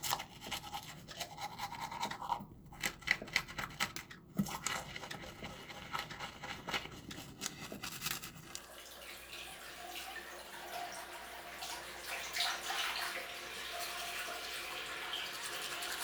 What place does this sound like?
restroom